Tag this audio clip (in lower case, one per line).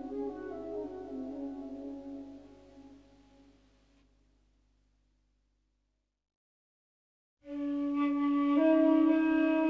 flute